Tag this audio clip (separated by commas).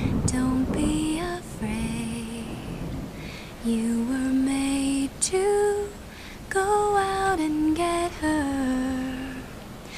Lullaby